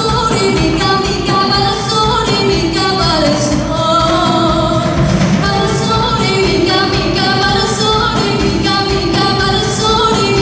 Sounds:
Female singing, Music

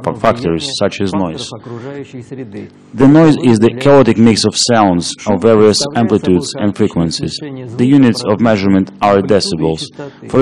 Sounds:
Speech

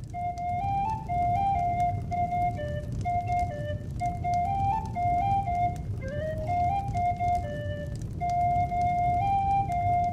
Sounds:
Flute, Music

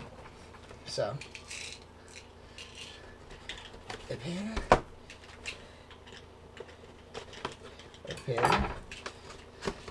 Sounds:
Speech

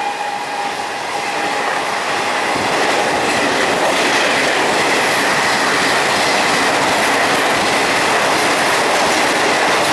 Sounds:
Rail transport, Vehicle, Train

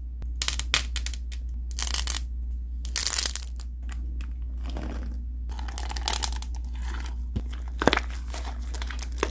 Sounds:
ice cracking

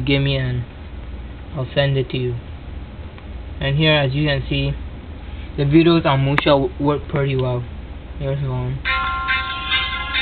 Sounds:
Music, Speech

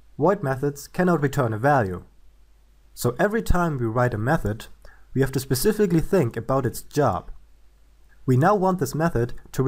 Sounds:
Speech

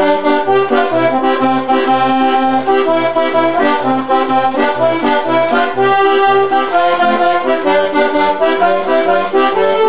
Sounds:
Music

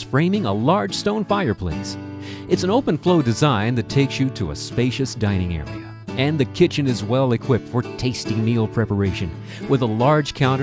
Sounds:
Music, Speech

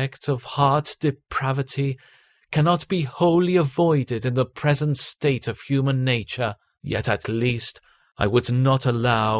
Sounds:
Speech, Narration

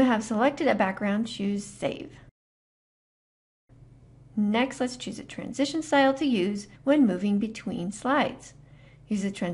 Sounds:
monologue, Speech

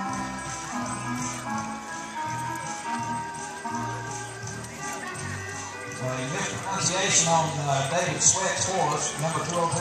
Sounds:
Animal, Horse, Music, Speech, Clip-clop

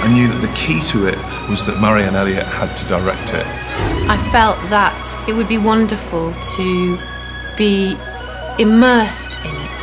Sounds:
Speech, Music

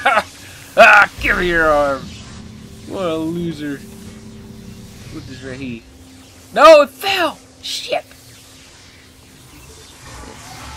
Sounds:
Speech

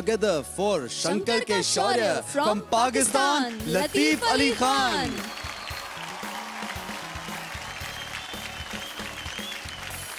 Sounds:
Speech, Music

